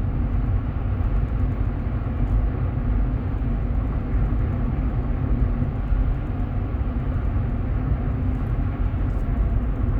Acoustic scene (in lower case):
car